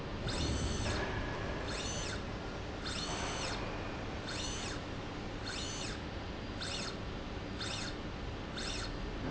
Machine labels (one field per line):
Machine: slide rail